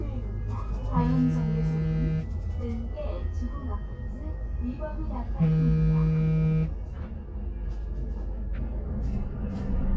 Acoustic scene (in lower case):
bus